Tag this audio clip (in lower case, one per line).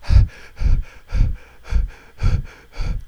breathing
respiratory sounds